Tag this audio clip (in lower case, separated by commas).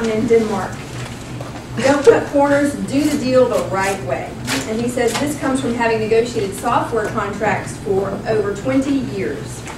speech, tap